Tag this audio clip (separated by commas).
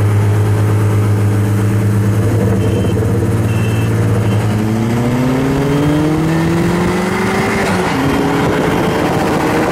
Vehicle, outside, urban or man-made, Car